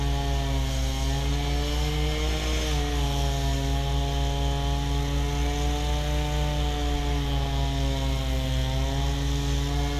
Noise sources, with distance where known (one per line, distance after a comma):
unidentified powered saw, near